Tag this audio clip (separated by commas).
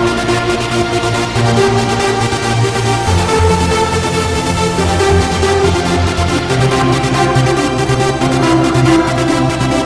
Music, Electronic music, Techno, Trance music